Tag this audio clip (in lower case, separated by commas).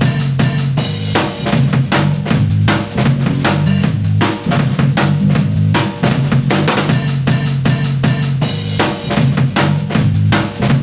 playing bass drum